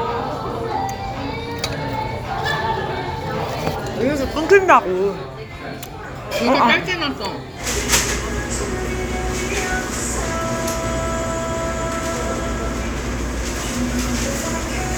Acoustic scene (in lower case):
restaurant